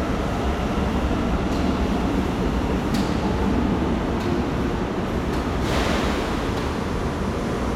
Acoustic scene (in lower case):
subway station